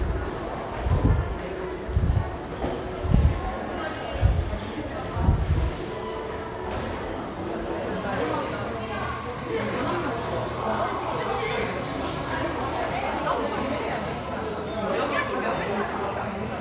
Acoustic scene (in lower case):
crowded indoor space